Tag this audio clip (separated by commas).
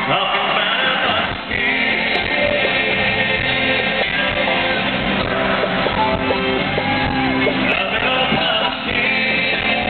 Music, Singing, inside a large room or hall, inside a public space